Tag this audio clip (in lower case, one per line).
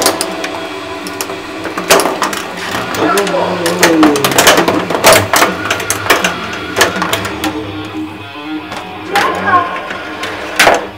inside a large room or hall
music
speech